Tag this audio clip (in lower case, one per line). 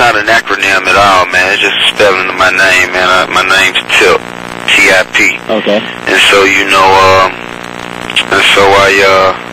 speech
radio